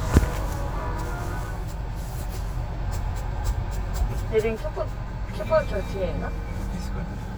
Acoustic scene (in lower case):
car